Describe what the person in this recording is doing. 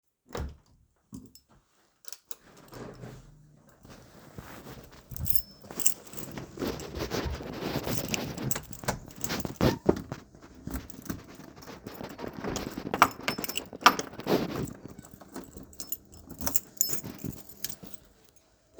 I opened the door went outside closed the door and locked it while the garage was opening